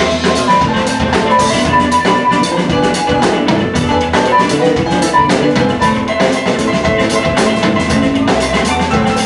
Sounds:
music, plucked string instrument, guitar, blues, musical instrument

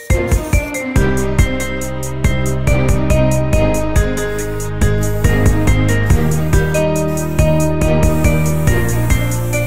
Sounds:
music

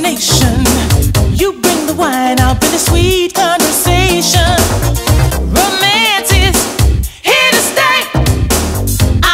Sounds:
music, singing, soul music

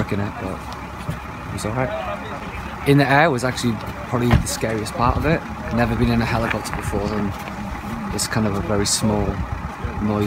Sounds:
outside, urban or man-made, speech, vehicle

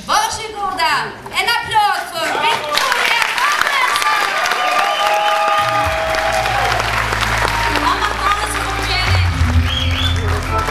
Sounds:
music, speech

